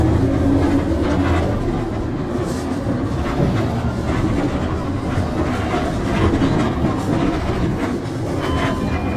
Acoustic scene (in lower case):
bus